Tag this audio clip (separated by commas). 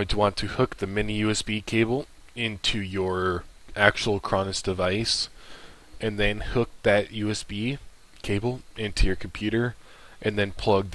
Speech